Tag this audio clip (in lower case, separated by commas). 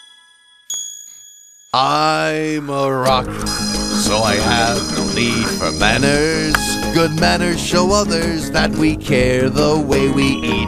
music for children, music